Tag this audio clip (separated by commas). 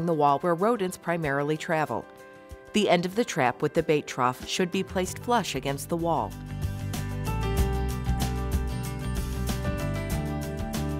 Music, Speech